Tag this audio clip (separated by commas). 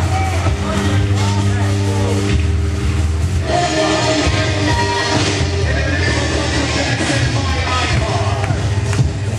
Speech, Music